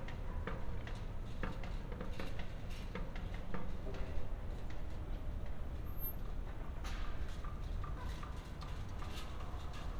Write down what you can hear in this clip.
music from a fixed source